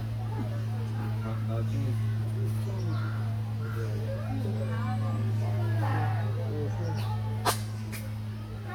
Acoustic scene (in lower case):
park